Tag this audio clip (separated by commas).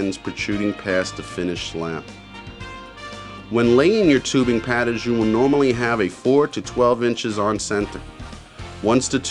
Music, Speech